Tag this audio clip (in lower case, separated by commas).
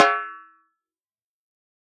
musical instrument, music, drum, percussion, snare drum